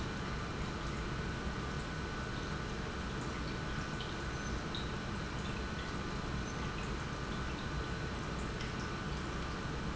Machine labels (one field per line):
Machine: pump